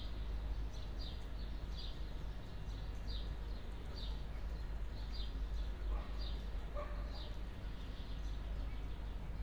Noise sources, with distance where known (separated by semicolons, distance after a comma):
dog barking or whining, far